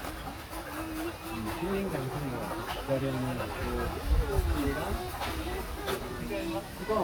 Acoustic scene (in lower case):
park